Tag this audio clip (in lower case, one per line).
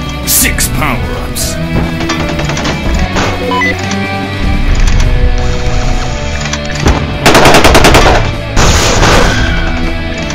gunfire
machine gun